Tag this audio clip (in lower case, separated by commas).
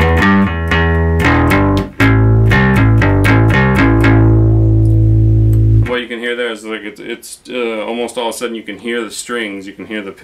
bass guitar, electronic tuner, musical instrument, plucked string instrument, inside a small room, speech, guitar, music